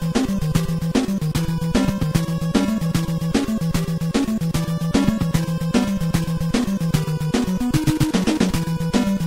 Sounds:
Music, Video game music

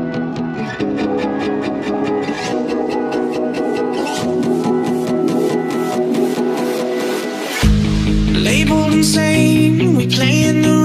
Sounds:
Electronica

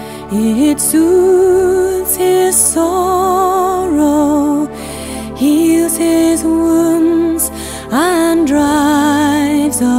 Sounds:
Music

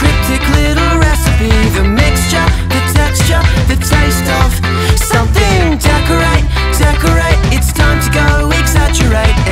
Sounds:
Music

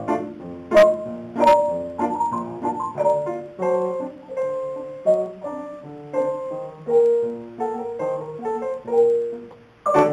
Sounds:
xylophone, Glockenspiel, Mallet percussion

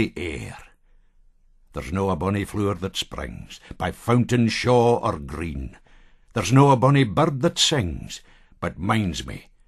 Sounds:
Speech

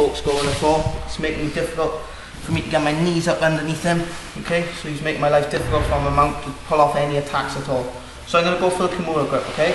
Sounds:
Speech

